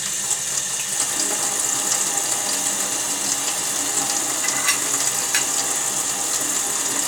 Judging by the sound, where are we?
in a kitchen